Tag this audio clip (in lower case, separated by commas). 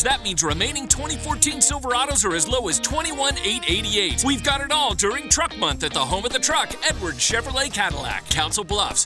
speech, music